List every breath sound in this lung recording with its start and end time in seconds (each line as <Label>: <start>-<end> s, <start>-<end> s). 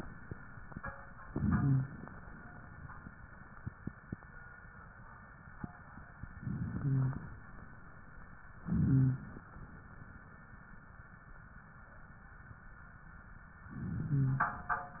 Inhalation: 1.24-2.05 s, 6.44-7.26 s, 8.60-9.41 s, 13.74-14.64 s
Wheeze: 1.24-2.05 s, 6.44-7.26 s, 8.70-9.29 s, 13.92-14.52 s